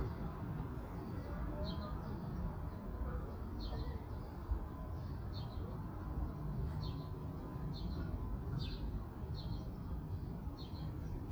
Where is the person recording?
in a park